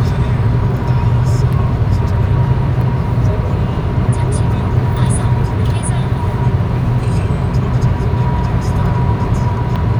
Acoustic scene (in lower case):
car